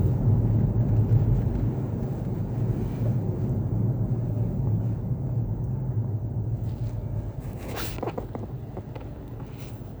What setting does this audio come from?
car